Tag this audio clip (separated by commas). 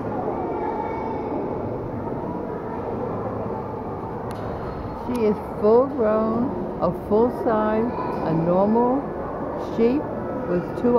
Speech